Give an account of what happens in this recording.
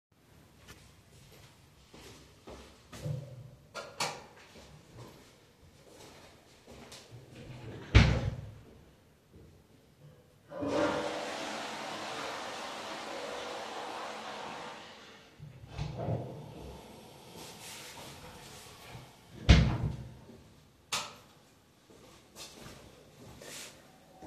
I went to the bathroom turning on the light, then opening the door, going inside and closing the door. I then flushed, went back outside and turned off the light.